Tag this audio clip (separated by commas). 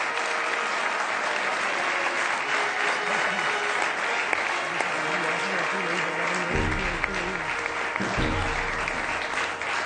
Applause, people clapping, Speech, Music